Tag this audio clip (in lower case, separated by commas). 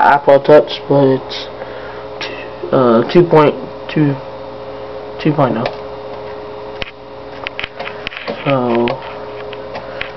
speech, inside a small room